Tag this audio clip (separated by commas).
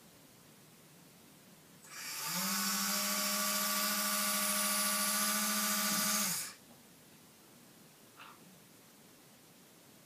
Truck